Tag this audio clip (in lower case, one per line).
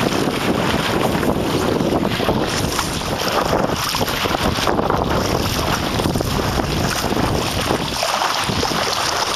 sailing
wind
water vehicle
wind noise (microphone)
sailboat